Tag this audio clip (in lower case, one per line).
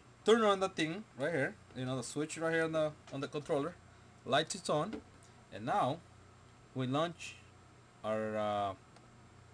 speech